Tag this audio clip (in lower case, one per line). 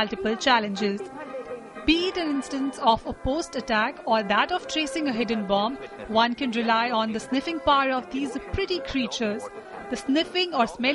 speech
music